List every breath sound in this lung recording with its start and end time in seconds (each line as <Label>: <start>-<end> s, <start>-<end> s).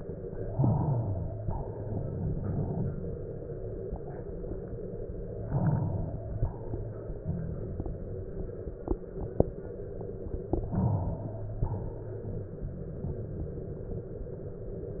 Inhalation: 0.49-1.39 s, 5.37-6.23 s, 10.50-11.63 s
Exhalation: 1.40-3.50 s, 6.22-7.85 s, 11.64-13.78 s